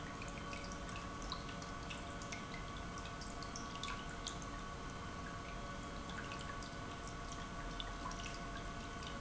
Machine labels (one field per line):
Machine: pump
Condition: normal